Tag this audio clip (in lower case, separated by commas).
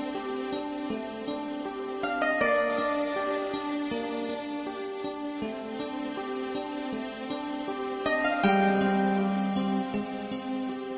music